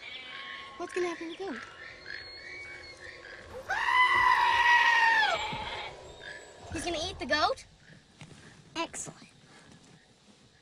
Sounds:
goat bleating

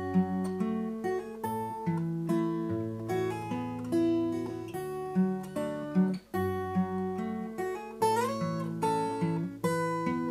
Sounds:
Acoustic guitar, Musical instrument, Music, Guitar

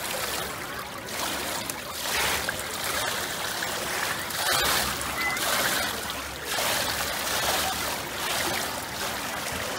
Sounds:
swimming

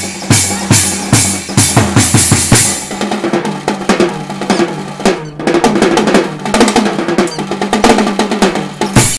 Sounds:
Percussion, Drum roll, Snare drum, Rimshot, Drum kit, Drum, Bass drum

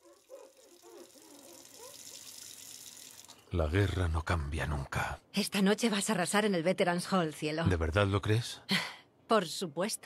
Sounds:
Speech

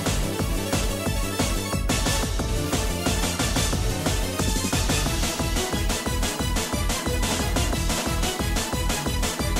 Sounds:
Music

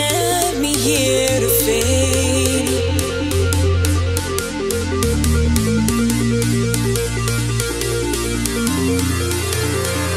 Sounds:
Dubstep, Music, Electronic music

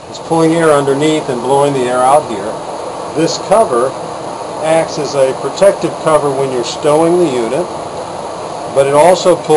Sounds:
Speech

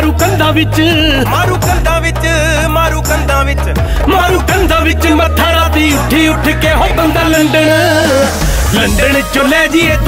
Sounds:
Singing, Music

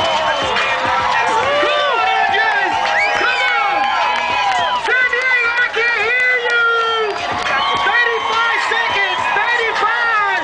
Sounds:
Speech, Music

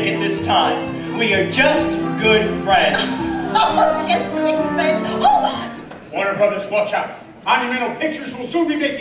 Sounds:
Music, Speech

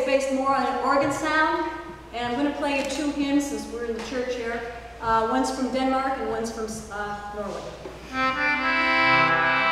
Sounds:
Speech, Music

